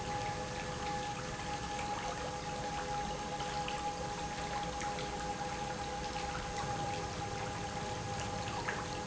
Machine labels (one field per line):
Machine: pump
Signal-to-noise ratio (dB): -6 dB